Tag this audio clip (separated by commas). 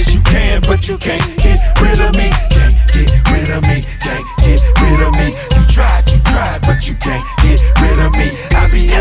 Afrobeat